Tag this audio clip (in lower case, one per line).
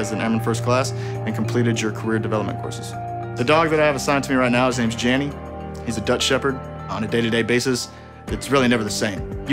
speech
music